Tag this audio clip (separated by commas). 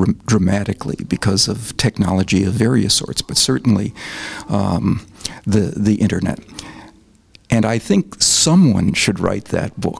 Speech